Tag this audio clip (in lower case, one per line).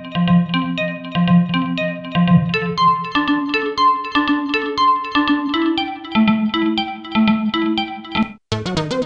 music
synthesizer